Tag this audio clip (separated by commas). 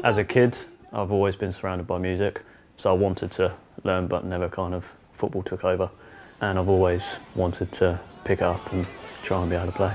Musical instrument, Speech, Music, Guitar, Plucked string instrument